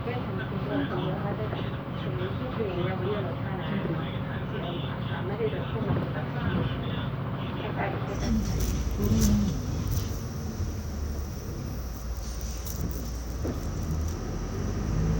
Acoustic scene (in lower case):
bus